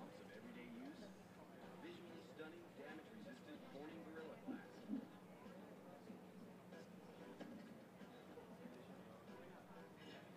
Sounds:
Speech

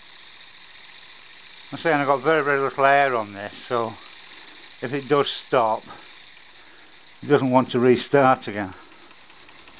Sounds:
Engine, Speech

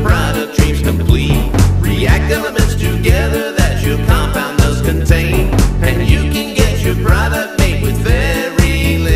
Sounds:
Music

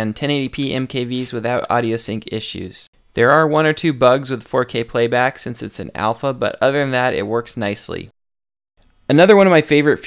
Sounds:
Speech

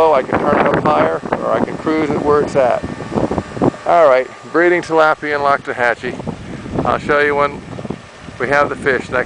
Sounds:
outside, rural or natural, Speech

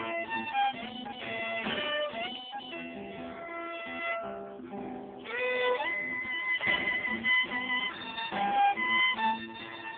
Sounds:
fiddle, Music, Musical instrument

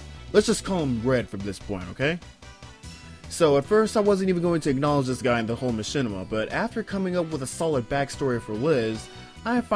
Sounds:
Music, Speech

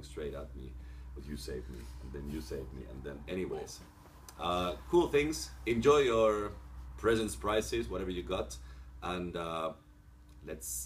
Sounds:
Speech

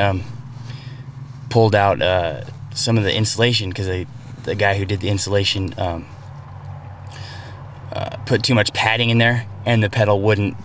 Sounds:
Speech

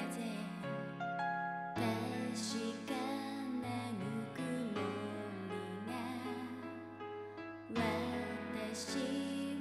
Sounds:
Music

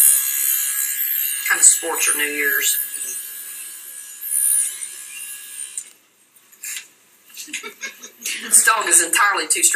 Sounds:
inside a small room, Speech

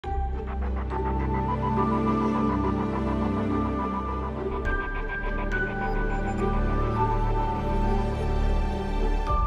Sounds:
New-age music

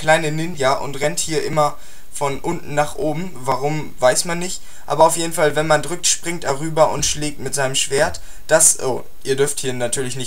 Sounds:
Speech

